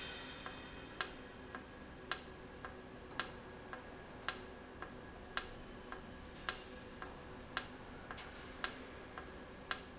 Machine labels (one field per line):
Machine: valve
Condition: normal